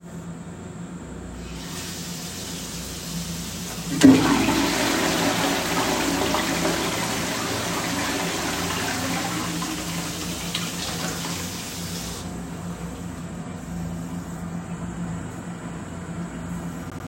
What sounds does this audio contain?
running water, toilet flushing